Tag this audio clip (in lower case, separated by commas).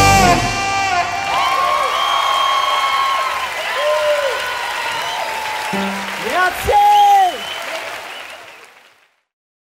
musical instrument, saxophone, whoop, music, speech, rock music